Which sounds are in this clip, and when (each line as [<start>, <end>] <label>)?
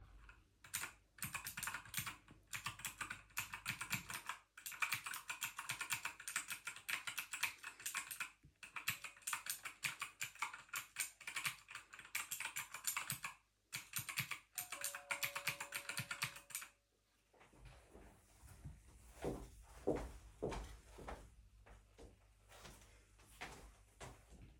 [0.67, 16.77] keyboard typing
[14.47, 16.10] bell ringing
[19.14, 24.12] footsteps